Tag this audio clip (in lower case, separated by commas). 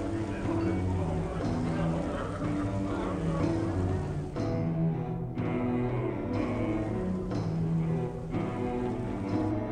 music, speech